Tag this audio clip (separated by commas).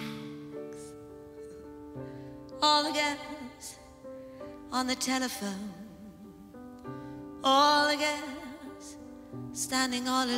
Music